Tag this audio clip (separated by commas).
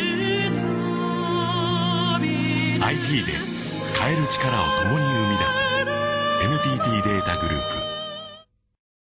Music, Speech